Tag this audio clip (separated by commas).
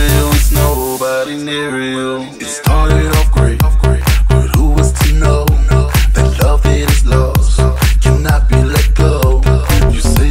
Music, Echo